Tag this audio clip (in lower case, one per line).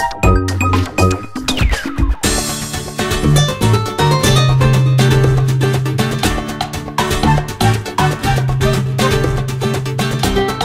video game music
music